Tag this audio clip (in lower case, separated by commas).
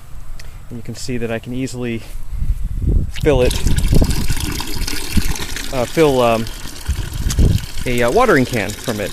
speech